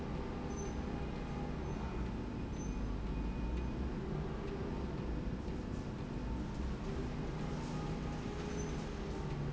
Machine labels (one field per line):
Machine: slide rail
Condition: normal